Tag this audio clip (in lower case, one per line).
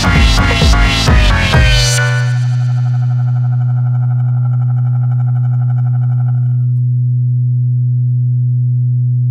music